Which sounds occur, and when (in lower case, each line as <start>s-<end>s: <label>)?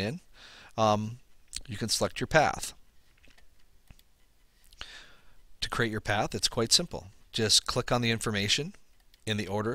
0.0s-0.2s: man speaking
0.0s-9.7s: background noise
0.3s-0.7s: breathing
0.7s-1.2s: man speaking
1.4s-1.7s: human sounds
1.6s-2.7s: man speaking
3.0s-3.4s: human sounds
3.5s-3.6s: human sounds
3.8s-4.0s: human sounds
4.6s-4.8s: human sounds
4.8s-5.3s: breathing
5.6s-7.0s: man speaking
7.3s-8.7s: man speaking
8.7s-8.8s: tick
8.9s-9.0s: tick
9.1s-9.2s: tick
9.2s-9.7s: man speaking